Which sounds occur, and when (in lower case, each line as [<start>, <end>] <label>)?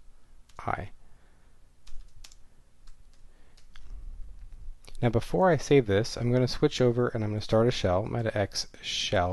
[0.00, 9.32] background noise
[0.46, 0.53] clicking
[0.56, 0.88] male speech
[0.98, 1.59] breathing
[1.83, 2.06] computer keyboard
[2.19, 2.38] computer keyboard
[2.80, 2.89] computer keyboard
[3.10, 3.19] computer keyboard
[3.20, 3.52] breathing
[3.52, 3.58] clicking
[3.68, 3.78] clicking
[4.38, 4.51] clicking
[4.82, 4.97] clicking
[4.98, 9.32] male speech